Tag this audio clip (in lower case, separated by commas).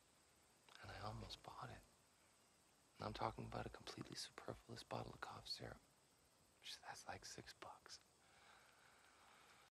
speech